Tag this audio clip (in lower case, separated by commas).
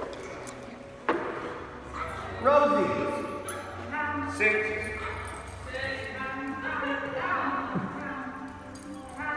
dog, animal, pets, speech